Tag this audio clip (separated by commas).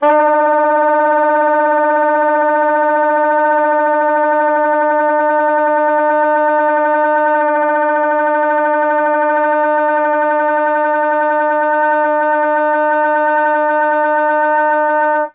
woodwind instrument, Musical instrument, Music